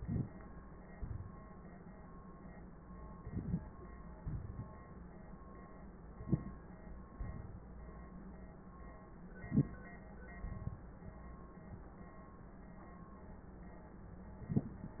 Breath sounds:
0.99-1.44 s: exhalation
3.19-3.65 s: inhalation
4.21-4.80 s: exhalation
6.24-6.68 s: inhalation
7.19-7.63 s: exhalation
9.47-9.91 s: inhalation
10.46-10.89 s: exhalation

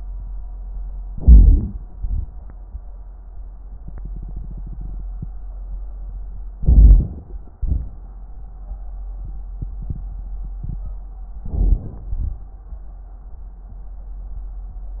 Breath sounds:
1.08-1.94 s: inhalation
1.08-1.94 s: crackles
1.96-2.82 s: exhalation
1.96-2.82 s: crackles
6.57-7.43 s: inhalation
6.57-7.43 s: crackles
7.50-8.12 s: exhalation
7.50-8.12 s: crackles
11.45-12.07 s: inhalation
11.45-12.07 s: crackles
12.12-12.60 s: exhalation
12.12-12.60 s: crackles

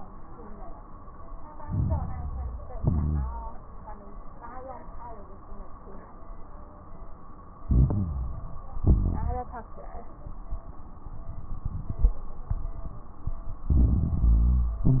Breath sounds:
1.59-2.75 s: inhalation
1.59-2.75 s: crackles
2.75-3.51 s: exhalation
2.75-3.51 s: crackles
7.64-8.80 s: inhalation
7.64-8.80 s: crackles
8.82-9.57 s: exhalation
8.82-9.57 s: crackles
13.68-14.84 s: inhalation
13.68-14.84 s: crackles
14.86-15.00 s: exhalation
14.86-15.00 s: crackles

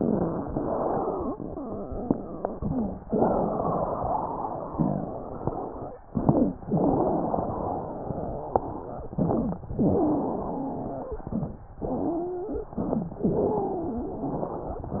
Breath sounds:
0.47-1.33 s: inhalation
0.47-1.33 s: wheeze
2.52-3.08 s: inhalation
2.52-3.08 s: wheeze
3.15-5.94 s: exhalation
3.15-5.94 s: wheeze
6.09-6.64 s: inhalation
6.09-6.64 s: wheeze
6.70-9.11 s: exhalation
6.70-9.11 s: wheeze
6.70-9.11 s: wheeze
9.15-9.70 s: inhalation
9.15-9.70 s: wheeze
9.77-11.16 s: wheeze
9.79-11.23 s: exhalation
11.21-11.63 s: inhalation
11.21-11.63 s: wheeze
11.78-12.77 s: exhalation
12.77-13.22 s: inhalation
12.77-13.22 s: wheeze
13.24-15.00 s: exhalation
13.24-15.00 s: wheeze

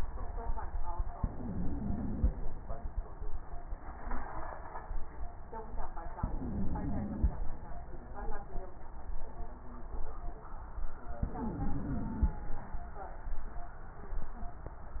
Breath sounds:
1.14-2.29 s: inhalation
1.14-2.29 s: wheeze
6.17-7.32 s: inhalation
6.17-7.32 s: wheeze
11.21-12.37 s: inhalation
11.21-12.37 s: wheeze

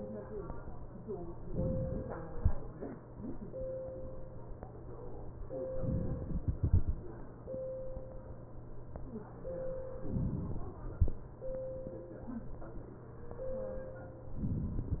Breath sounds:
1.50-2.38 s: inhalation
5.73-6.61 s: inhalation
6.61-7.44 s: exhalation
10.00-10.83 s: inhalation

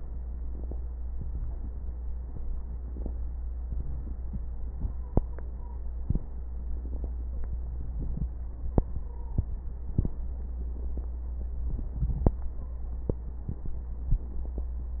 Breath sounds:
1.09-3.67 s: inhalation
1.09-3.67 s: crackles
3.67-5.92 s: exhalation
4.88-5.86 s: stridor
5.92-8.57 s: crackles
8.61-9.82 s: inhalation
9.02-9.51 s: stridor
9.86-11.90 s: exhalation
9.86-11.90 s: crackles
12.56-13.05 s: stridor

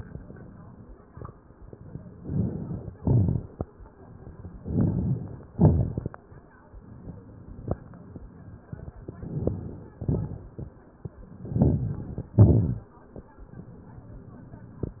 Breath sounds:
2.13-2.94 s: inhalation
2.94-3.75 s: exhalation
2.94-3.75 s: crackles
4.54-5.49 s: inhalation
4.54-5.49 s: crackles
5.50-6.16 s: exhalation
5.50-6.16 s: crackles
8.95-9.96 s: inhalation
8.95-9.96 s: crackles
9.97-10.77 s: exhalation
9.97-10.77 s: crackles
11.27-12.26 s: inhalation
11.27-12.26 s: crackles
12.33-12.99 s: exhalation
12.33-12.99 s: crackles

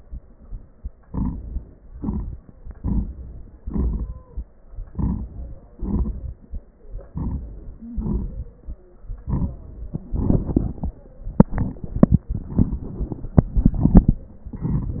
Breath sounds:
1.06-1.75 s: inhalation
1.06-1.75 s: crackles
1.75-2.73 s: exhalation
1.77-2.73 s: crackles
2.75-3.59 s: inhalation
2.75-3.59 s: crackles
3.58-4.67 s: exhalation
4.63-5.69 s: crackles
5.70-6.79 s: inhalation
5.70-6.79 s: crackles
6.80-7.76 s: exhalation
6.80-7.76 s: crackles
7.76-9.00 s: inhalation
7.80-8.27 s: wheeze
9.00-10.11 s: exhalation
9.00-10.11 s: crackles

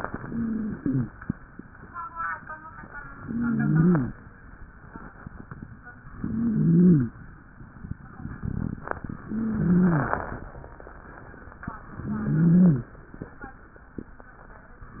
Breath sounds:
0.00-1.06 s: inhalation
0.25-1.06 s: wheeze
3.15-4.08 s: inhalation
3.15-4.08 s: wheeze
6.20-7.14 s: inhalation
6.20-7.14 s: wheeze
9.28-10.21 s: inhalation
9.28-10.21 s: wheeze
12.03-12.96 s: inhalation
12.03-12.96 s: wheeze

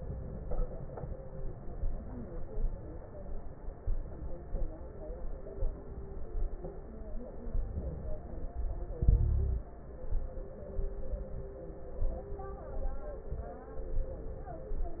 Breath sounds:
9.01-9.69 s: inhalation
9.01-9.69 s: crackles

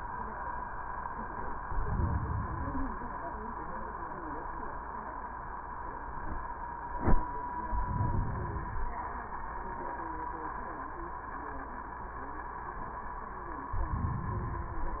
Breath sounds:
1.50-2.54 s: inhalation
2.56-3.60 s: exhalation
7.62-8.52 s: inhalation
8.52-9.41 s: exhalation
13.71-14.72 s: inhalation

